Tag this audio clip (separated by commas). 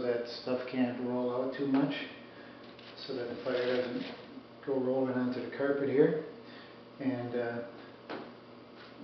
Speech